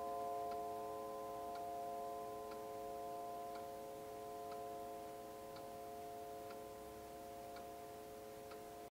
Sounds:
Tick

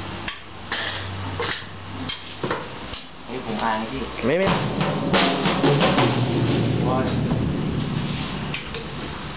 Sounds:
Music, Speech

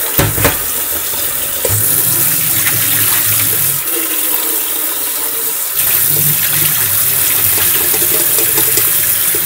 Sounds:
inside a small room, Fill (with liquid)

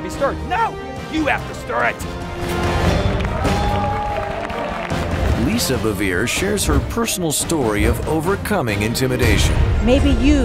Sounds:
Music, Speech

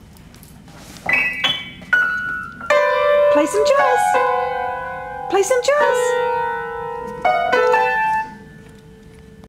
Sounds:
Music, Speech

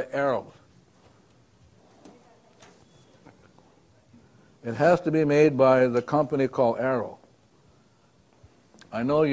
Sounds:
Speech

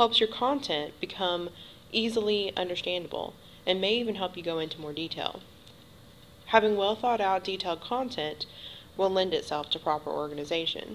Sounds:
Speech

